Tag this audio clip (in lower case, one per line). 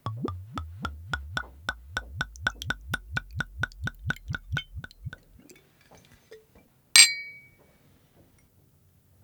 clink
liquid
glass